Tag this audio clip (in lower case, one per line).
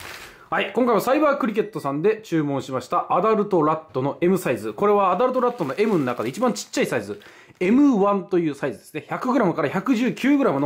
speech